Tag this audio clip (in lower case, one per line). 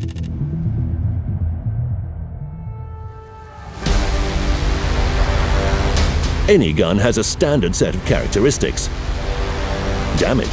firing cannon